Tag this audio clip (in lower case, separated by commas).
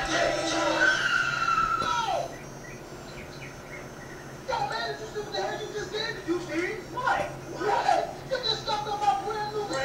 speech, squeal, music